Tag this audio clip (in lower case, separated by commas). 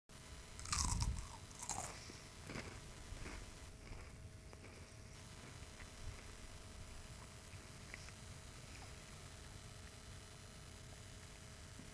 chewing